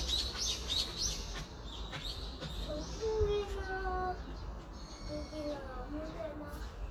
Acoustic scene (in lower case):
park